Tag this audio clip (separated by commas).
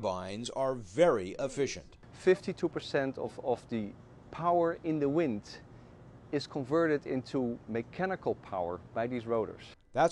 Speech